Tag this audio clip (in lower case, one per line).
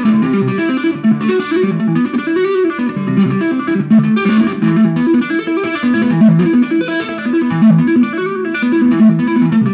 tapping (guitar technique)
music